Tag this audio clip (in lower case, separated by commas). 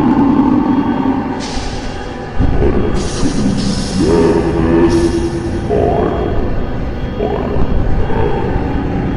scary music, music